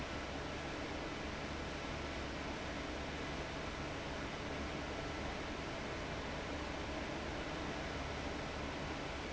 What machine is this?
fan